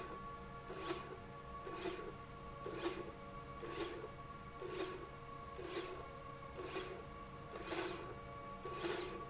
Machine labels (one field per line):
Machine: slide rail